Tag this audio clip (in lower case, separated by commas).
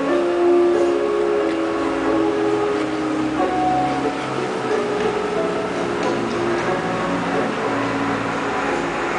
music